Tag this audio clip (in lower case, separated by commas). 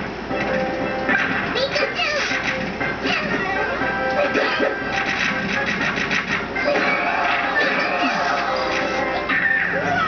music